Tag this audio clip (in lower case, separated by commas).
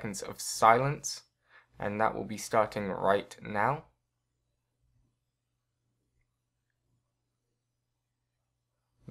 speech